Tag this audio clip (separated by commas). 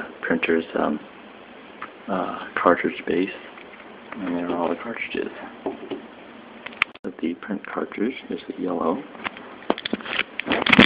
Speech